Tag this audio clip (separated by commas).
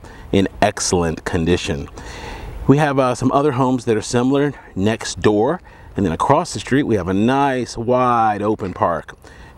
Speech